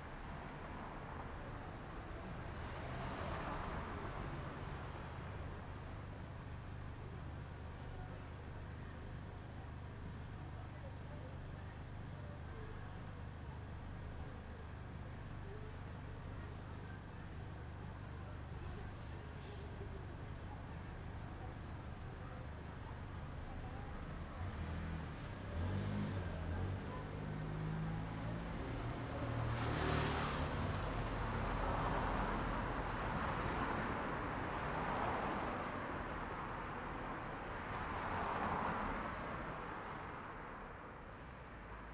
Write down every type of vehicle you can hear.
car, motorcycle